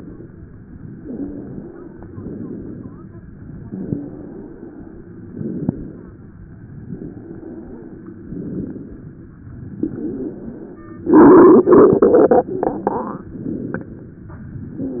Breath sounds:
0.95-1.98 s: inhalation
2.09-3.11 s: exhalation
3.51-4.54 s: inhalation
5.24-6.26 s: exhalation
6.83-7.86 s: inhalation
8.08-9.11 s: exhalation
9.83-10.85 s: inhalation

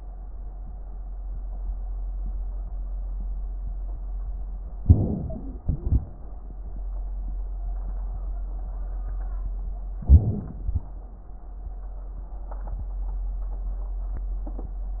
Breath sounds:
4.78-5.64 s: inhalation
4.78-6.33 s: wheeze
5.62-6.33 s: exhalation
10.06-10.69 s: inhalation
10.72-11.11 s: exhalation

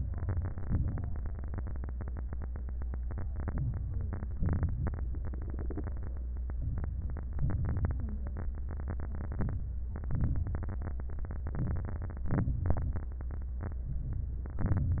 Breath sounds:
0.58-1.06 s: crackles
0.62-1.09 s: inhalation
3.34-4.38 s: inhalation
4.41-5.07 s: exhalation
4.42-5.05 s: crackles
6.60-7.37 s: crackles
6.61-7.37 s: inhalation
7.40-8.27 s: crackles
7.42-8.28 s: exhalation
9.28-9.89 s: inhalation
9.29-9.89 s: crackles
10.04-10.64 s: exhalation
10.04-10.64 s: crackles
11.46-12.29 s: inhalation
12.31-13.14 s: exhalation
12.31-13.14 s: crackles
13.61-14.25 s: crackles
13.61-14.26 s: inhalation
14.52-15.00 s: exhalation
14.53-15.00 s: crackles

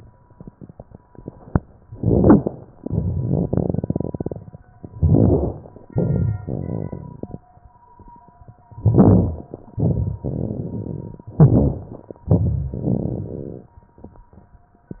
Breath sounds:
1.84-2.75 s: inhalation
1.84-2.75 s: crackles
2.78-4.50 s: crackles
2.78-4.58 s: exhalation
4.83-5.74 s: inhalation
4.83-5.74 s: crackles
5.85-7.47 s: exhalation
5.87-7.40 s: crackles
8.76-9.67 s: inhalation
8.76-9.67 s: crackles
9.78-11.31 s: exhalation
9.78-11.31 s: crackles
11.34-12.26 s: inhalation
11.34-12.26 s: crackles
12.31-13.84 s: exhalation
12.31-13.84 s: crackles

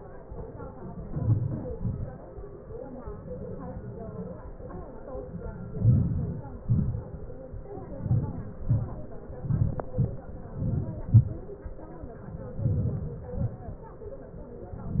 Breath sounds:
1.03-1.60 s: inhalation
1.74-2.14 s: exhalation
5.78-6.52 s: inhalation
6.66-7.03 s: exhalation
8.01-8.53 s: inhalation
8.69-9.01 s: exhalation
9.51-9.92 s: inhalation
9.96-10.28 s: exhalation
10.63-11.05 s: inhalation
11.16-11.43 s: exhalation
12.62-13.16 s: inhalation
13.24-13.65 s: exhalation

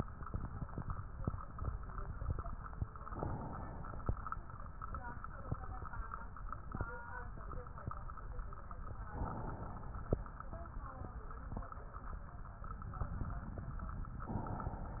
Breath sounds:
3.04-4.12 s: inhalation
9.12-10.20 s: inhalation
14.24-15.00 s: inhalation

